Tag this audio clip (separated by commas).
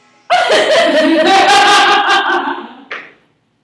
Laughter, Human voice